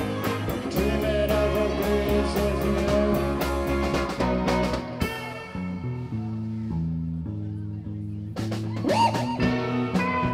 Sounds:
Music, Singing

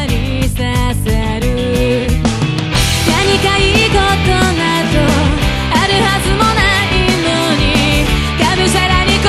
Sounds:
Music

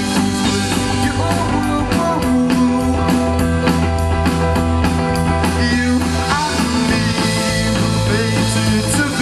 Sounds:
Music, Funk

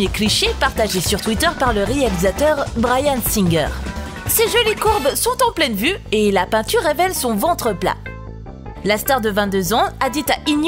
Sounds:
Speech, Music

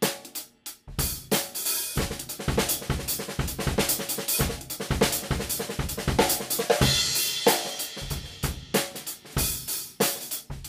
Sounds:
Percussion, Drum, Drum roll, Snare drum, Drum kit, Rimshot, Bass drum

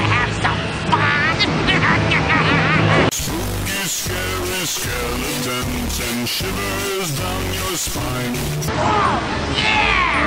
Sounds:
Speech, Music

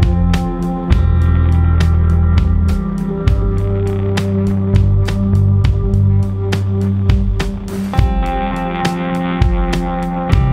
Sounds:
Music

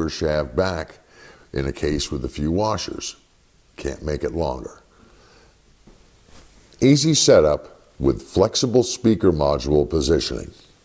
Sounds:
Speech

